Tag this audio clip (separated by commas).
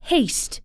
Human voice, woman speaking, Speech